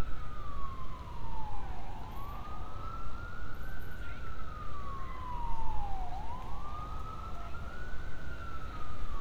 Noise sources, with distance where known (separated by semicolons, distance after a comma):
siren